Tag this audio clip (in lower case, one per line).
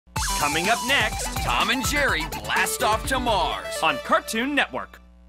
speech
music